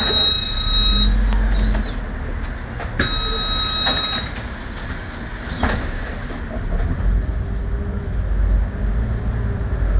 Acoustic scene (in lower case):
bus